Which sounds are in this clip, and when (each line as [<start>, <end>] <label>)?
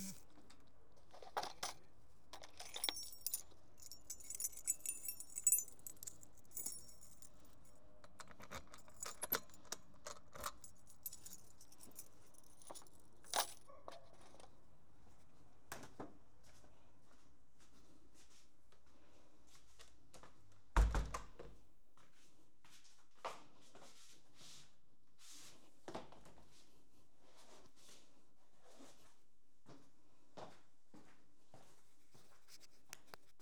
[2.73, 7.60] keys
[8.84, 10.72] keys
[10.96, 13.66] keys
[16.20, 20.54] footsteps
[20.73, 21.39] door
[21.68, 23.19] footsteps
[29.48, 33.04] footsteps